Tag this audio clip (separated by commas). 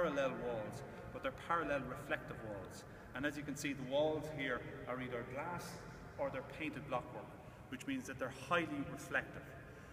Echo, Speech